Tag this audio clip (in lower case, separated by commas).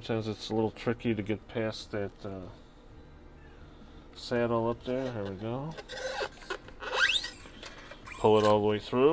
inside a small room, speech